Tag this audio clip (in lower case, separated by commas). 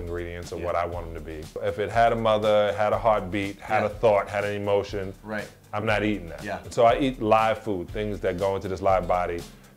music, speech